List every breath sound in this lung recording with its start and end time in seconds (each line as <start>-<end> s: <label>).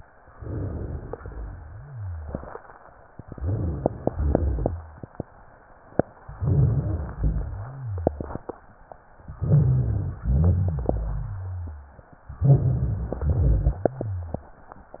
0.22-1.15 s: inhalation
1.15-2.53 s: exhalation
1.15-2.53 s: rhonchi
3.25-4.12 s: inhalation
3.25-4.12 s: rhonchi
4.14-5.08 s: exhalation
4.14-5.08 s: rhonchi
6.33-7.17 s: inhalation
6.33-7.17 s: rhonchi
7.19-8.47 s: exhalation
7.19-8.47 s: rhonchi
9.34-10.18 s: inhalation
9.34-10.18 s: rhonchi
10.22-12.13 s: exhalation
10.22-12.13 s: rhonchi
12.37-13.21 s: inhalation
12.37-13.21 s: rhonchi
13.21-14.60 s: exhalation
13.21-14.60 s: rhonchi